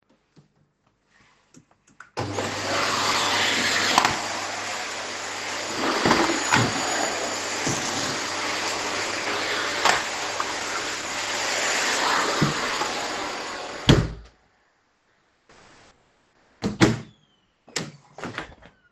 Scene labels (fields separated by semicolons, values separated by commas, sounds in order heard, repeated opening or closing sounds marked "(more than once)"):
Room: living room; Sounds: vacuum cleaner, light switch, wardrobe or drawer (more than once), door (more than once), footsteps